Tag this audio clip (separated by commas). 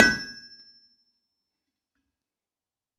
Tools